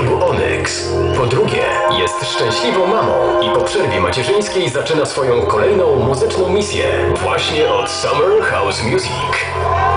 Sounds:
Music, Speech

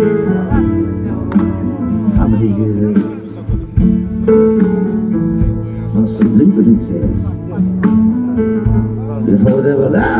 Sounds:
Speech, Music

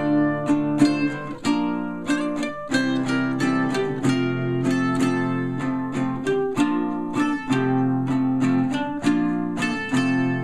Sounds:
Strum, Musical instrument, Acoustic guitar, Plucked string instrument, Guitar, Music

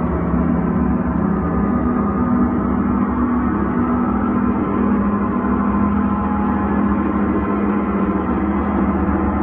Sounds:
playing gong

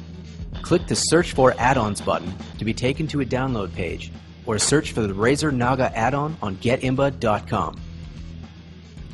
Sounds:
Music, Speech

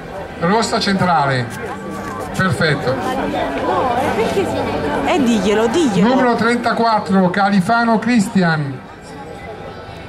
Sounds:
Music, Speech

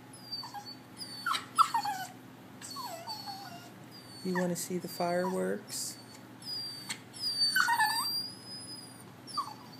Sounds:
Speech, pets

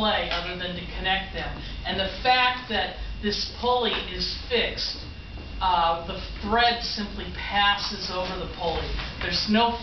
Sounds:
Speech

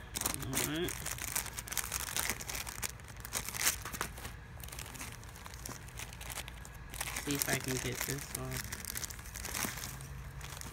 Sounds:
Speech, Crumpling

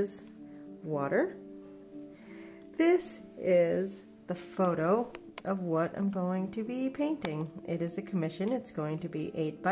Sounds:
Speech, Music

